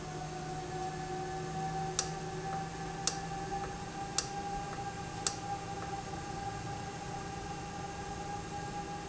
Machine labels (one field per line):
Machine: valve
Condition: normal